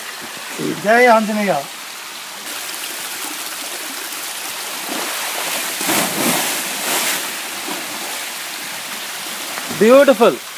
Man talking with water in background and a splash